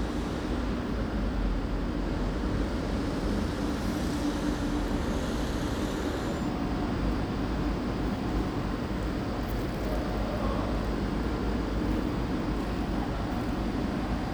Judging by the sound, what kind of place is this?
residential area